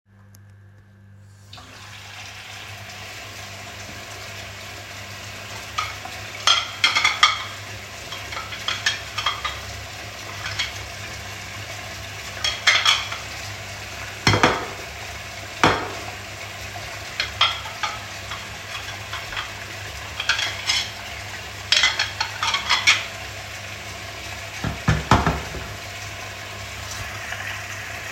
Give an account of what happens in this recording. I washed the plates while the water was running from the tap.